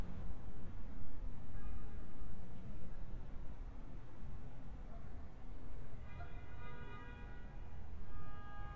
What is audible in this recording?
car horn